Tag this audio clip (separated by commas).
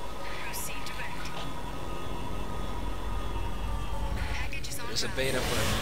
Speech